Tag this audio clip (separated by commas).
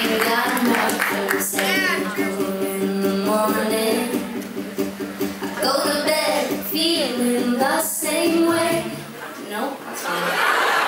Music